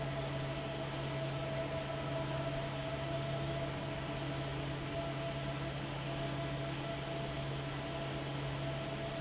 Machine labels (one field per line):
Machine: fan